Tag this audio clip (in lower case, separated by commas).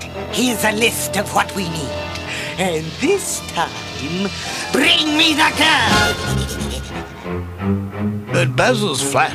music, speech